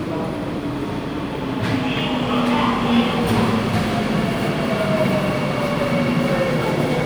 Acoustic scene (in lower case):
subway station